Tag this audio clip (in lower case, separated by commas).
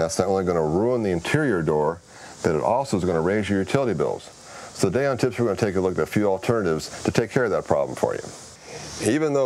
speech